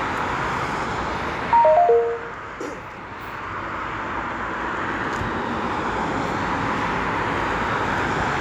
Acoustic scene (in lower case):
street